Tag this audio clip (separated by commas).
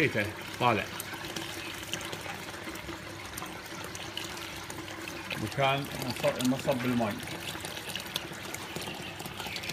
Speech, faucet, Liquid